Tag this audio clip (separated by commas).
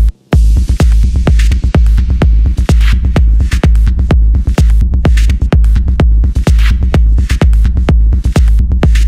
Music